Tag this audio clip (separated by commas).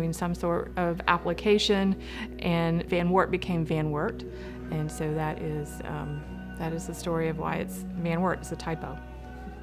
Music, Speech